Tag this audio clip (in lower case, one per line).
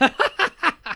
human voice
laughter